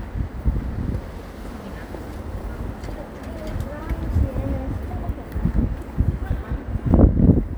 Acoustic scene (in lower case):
residential area